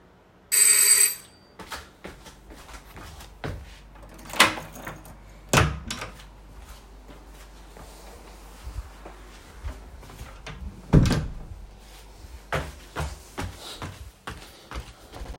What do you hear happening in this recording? The doorbell rang, so I walked to the front door and unlocked it. I opened the door to let my boyfriend enter the house. After closing the door, I walked toward the bedroom.